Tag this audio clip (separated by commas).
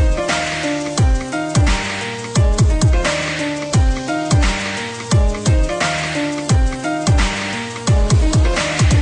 Dubstep, Music, Electronic music